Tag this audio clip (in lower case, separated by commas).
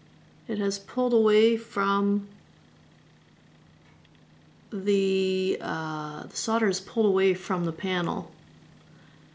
speech